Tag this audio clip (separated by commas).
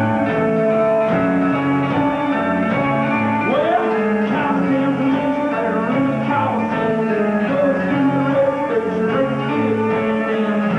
Music